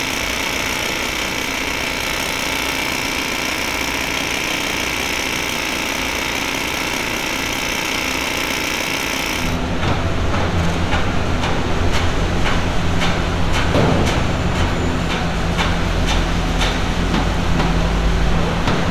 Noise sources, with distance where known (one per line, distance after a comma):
unidentified impact machinery